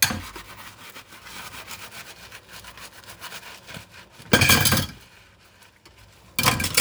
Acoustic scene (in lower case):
kitchen